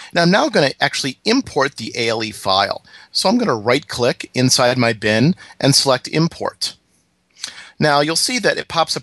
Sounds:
Speech

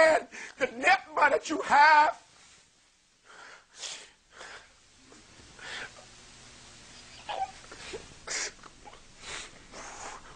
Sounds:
Speech, sobbing

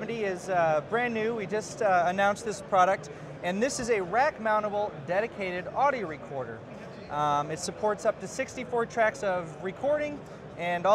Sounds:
Speech

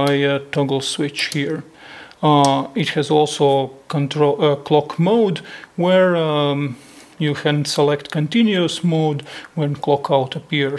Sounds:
Speech

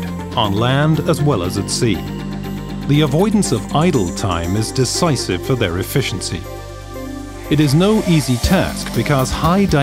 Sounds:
Speech, Music

